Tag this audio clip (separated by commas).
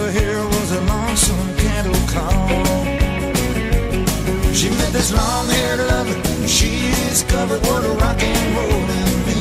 Rock and roll, Music